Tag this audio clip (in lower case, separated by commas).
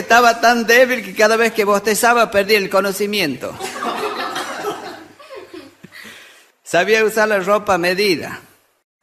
laughter, speech